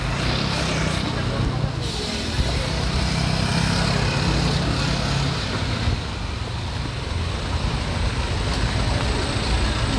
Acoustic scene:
street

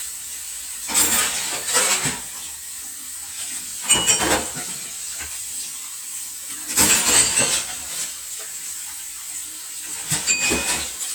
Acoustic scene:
kitchen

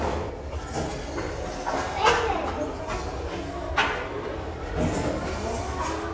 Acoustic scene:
restaurant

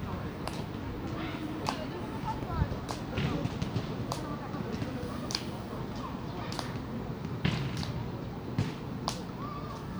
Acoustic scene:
residential area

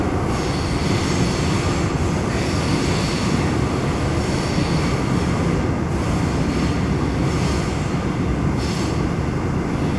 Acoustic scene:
subway train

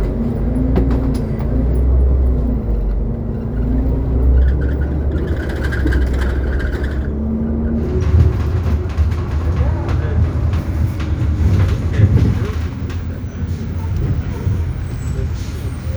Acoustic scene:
bus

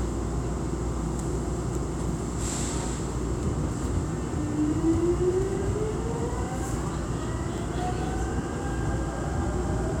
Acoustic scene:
subway train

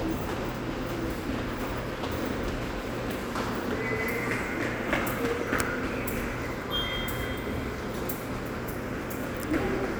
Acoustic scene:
subway station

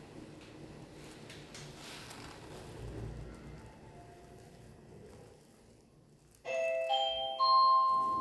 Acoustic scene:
elevator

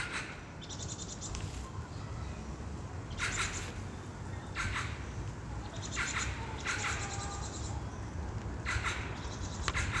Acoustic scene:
park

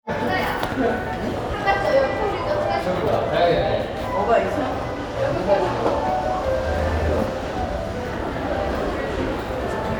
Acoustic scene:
crowded indoor space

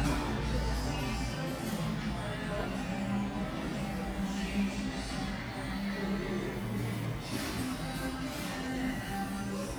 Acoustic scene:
cafe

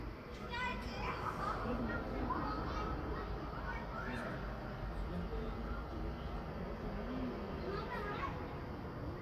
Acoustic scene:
residential area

